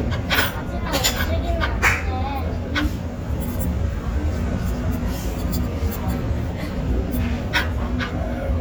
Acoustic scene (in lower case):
restaurant